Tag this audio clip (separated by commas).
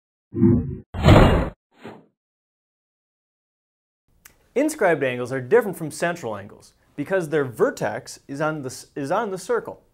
Speech, inside a small room